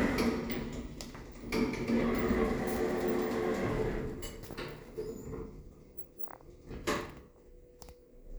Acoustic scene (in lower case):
elevator